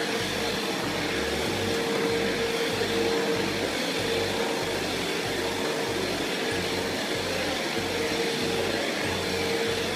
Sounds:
vacuum cleaner cleaning floors

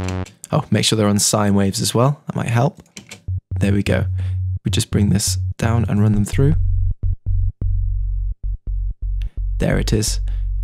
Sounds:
Speech

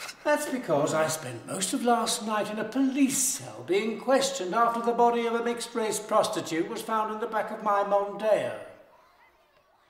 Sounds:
inside a small room, Speech

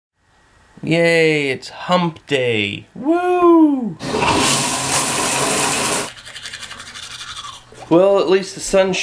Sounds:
Water

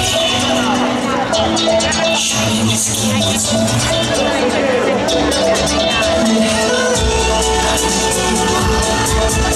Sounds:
Speech, Music

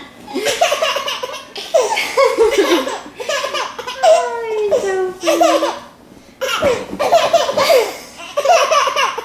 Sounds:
baby laughter

